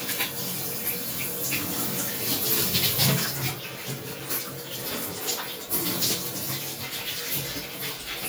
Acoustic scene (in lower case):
restroom